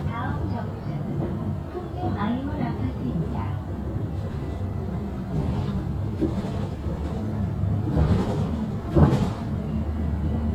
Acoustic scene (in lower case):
bus